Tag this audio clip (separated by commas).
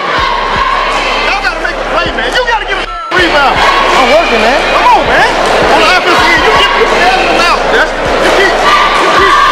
inside a public space, Speech